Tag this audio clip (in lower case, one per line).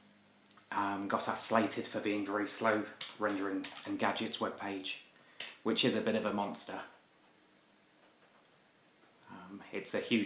speech
inside a small room